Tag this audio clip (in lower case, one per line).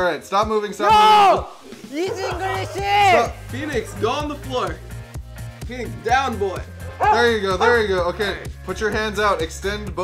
speech
music